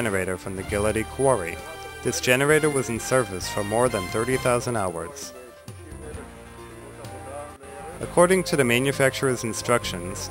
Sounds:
music
speech

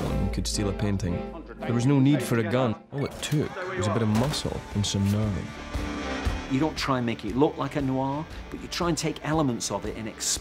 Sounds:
music
speech

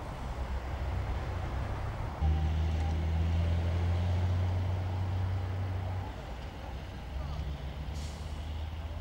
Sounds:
vehicle

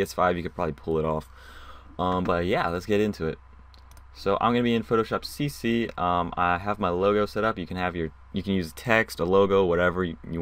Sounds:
speech

